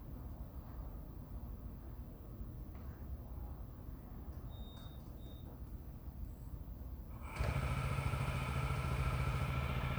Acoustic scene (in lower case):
residential area